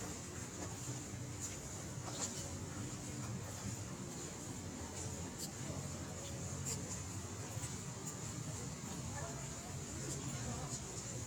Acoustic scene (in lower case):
residential area